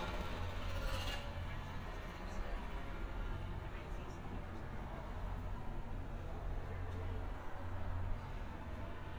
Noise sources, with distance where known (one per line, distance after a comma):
background noise